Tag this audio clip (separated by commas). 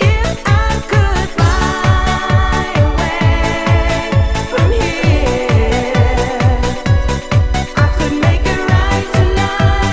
Music